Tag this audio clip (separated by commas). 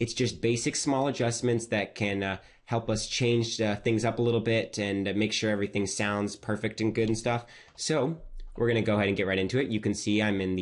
Speech